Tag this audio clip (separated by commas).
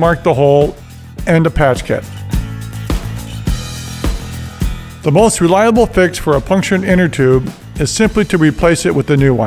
Speech, Music